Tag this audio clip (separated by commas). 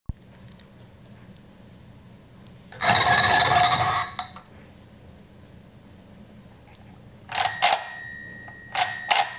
Telephone